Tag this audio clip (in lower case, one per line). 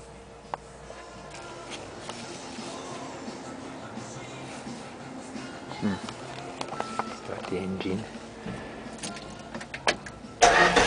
music
speech